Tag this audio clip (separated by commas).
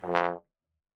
Music, Musical instrument, Brass instrument